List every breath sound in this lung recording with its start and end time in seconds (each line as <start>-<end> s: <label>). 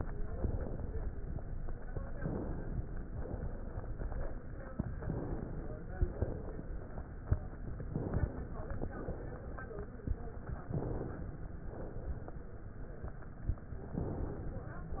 0.32-2.08 s: exhalation
0.32-2.08 s: crackles
2.13-3.14 s: crackles
2.15-3.15 s: inhalation
3.15-4.91 s: crackles
3.17-4.92 s: exhalation
4.95-6.08 s: crackles
4.96-6.09 s: inhalation
6.09-7.85 s: crackles
6.11-7.86 s: exhalation
7.88-8.81 s: crackles
7.88-8.82 s: inhalation
8.89-10.64 s: crackles
8.91-10.65 s: exhalation
10.70-11.63 s: crackles
10.70-11.64 s: inhalation
11.64-13.90 s: crackles
11.66-13.93 s: exhalation
14.01-14.95 s: crackles
14.01-14.96 s: inhalation
14.98-15.00 s: exhalation
14.98-15.00 s: crackles